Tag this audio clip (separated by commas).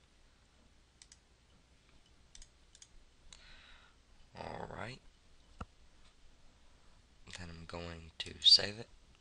Speech, Clicking